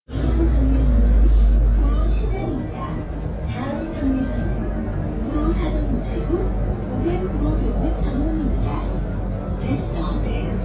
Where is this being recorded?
on a bus